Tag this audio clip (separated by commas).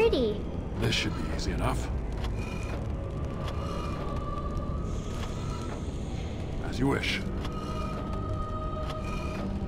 Speech, Music